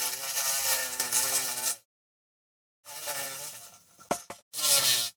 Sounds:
insect, wild animals, animal

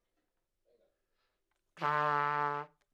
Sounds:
musical instrument, trumpet, brass instrument, music

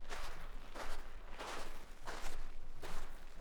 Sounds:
walk

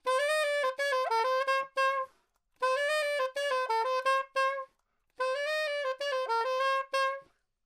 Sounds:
music, wind instrument, musical instrument

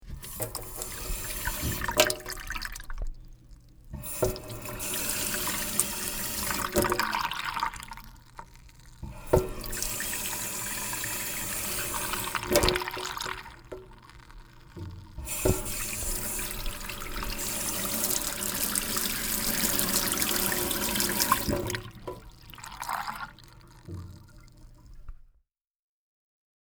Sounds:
water tap, home sounds, sink (filling or washing)

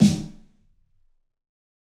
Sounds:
snare drum, musical instrument, drum, percussion, music

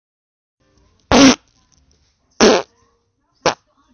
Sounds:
fart

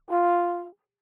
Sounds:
musical instrument, music, brass instrument

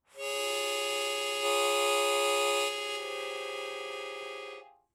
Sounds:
harmonica, musical instrument, music

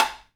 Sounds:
tap

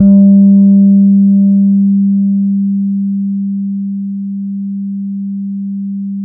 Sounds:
bass guitar, musical instrument, music, plucked string instrument, guitar

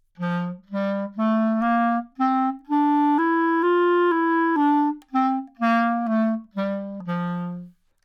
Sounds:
music, wind instrument, musical instrument

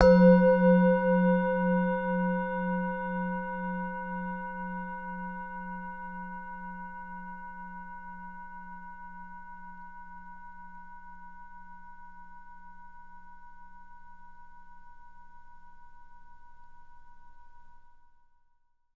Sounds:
music, musical instrument

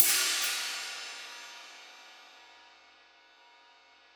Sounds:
percussion, musical instrument, hi-hat, cymbal, music

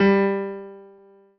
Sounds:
piano, musical instrument, music, keyboard (musical)

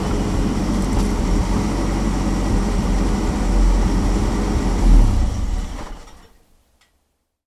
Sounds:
idling, engine

